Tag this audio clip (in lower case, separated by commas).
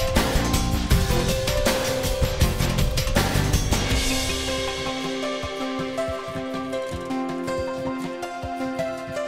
music